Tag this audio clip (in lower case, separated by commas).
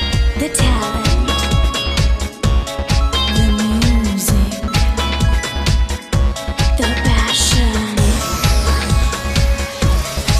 music